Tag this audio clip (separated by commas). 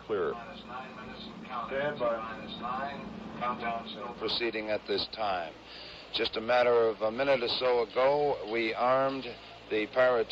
Speech